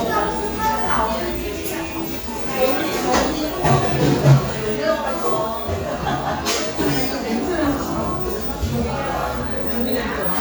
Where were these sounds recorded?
in a cafe